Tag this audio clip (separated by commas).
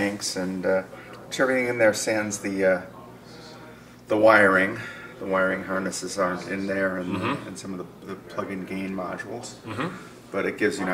Speech